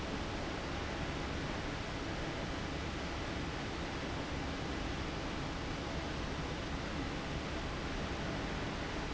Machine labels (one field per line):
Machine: fan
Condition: abnormal